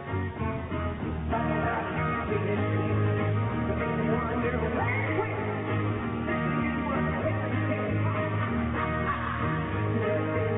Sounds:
music

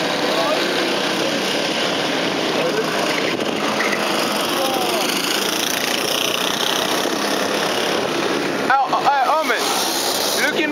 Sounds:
revving, vehicle, speech

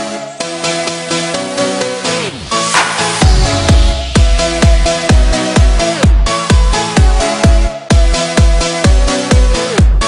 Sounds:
dance music, music, house music

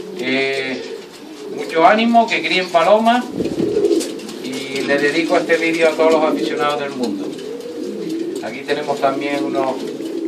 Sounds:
dove, inside a small room, bird, speech

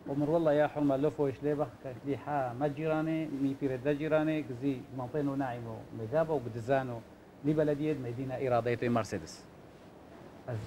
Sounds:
speech

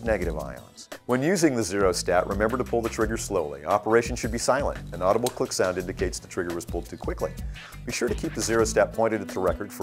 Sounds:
music, speech

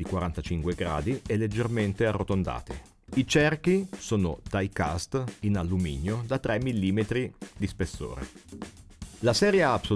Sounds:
speech, music

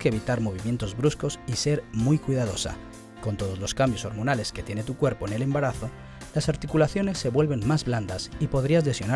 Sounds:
music, speech

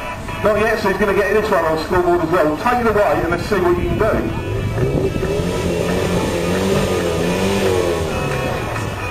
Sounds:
music, car, race car, speech, vroom, vehicle

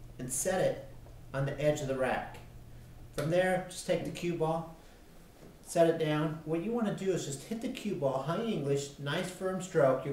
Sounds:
speech

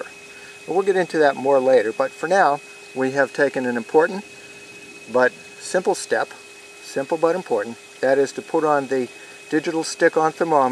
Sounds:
outside, rural or natural, speech

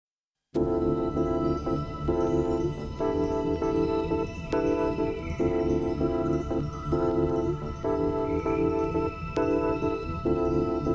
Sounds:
bass guitar

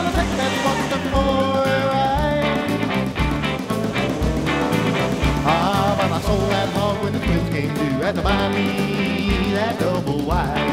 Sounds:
funny music, music

